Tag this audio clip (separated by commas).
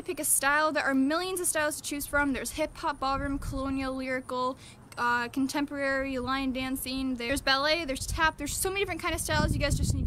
Speech